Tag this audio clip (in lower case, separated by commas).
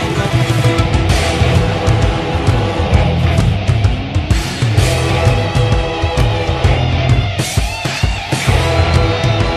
rock music, music